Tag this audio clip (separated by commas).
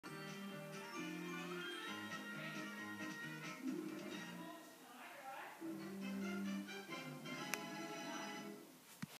Television, Speech